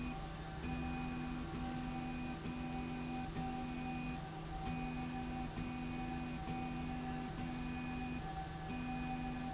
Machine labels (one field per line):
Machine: slide rail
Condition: normal